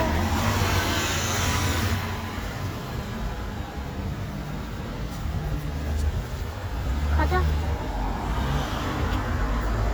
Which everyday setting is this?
street